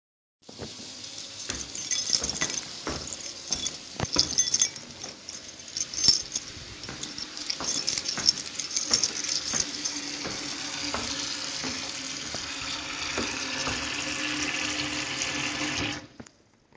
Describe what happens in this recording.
I was walking around with my keychains while the water was running in the background. Then i walked towards the tap and turned the water off.